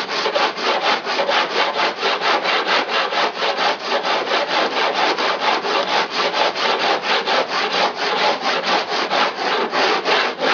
A rhythmic scraping sound is ongoing